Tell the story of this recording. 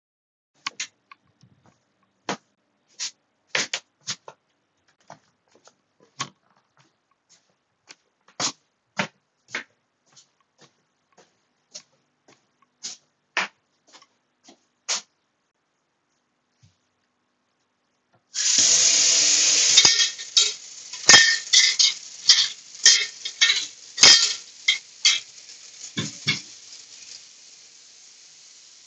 I got up from my chair and started walking towards the sink in the kitchen. Once I got to the sink I turned on the tap, I have then picked up and sorted some dishes, then I have placed the dishes down, while the water was still running.